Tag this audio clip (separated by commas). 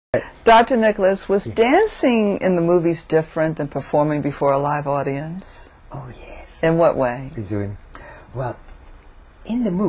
Speech